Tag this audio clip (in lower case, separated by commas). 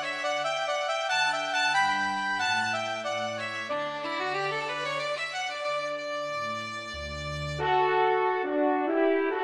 music, trumpet